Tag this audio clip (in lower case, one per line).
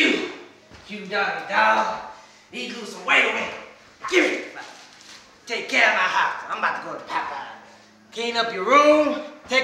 speech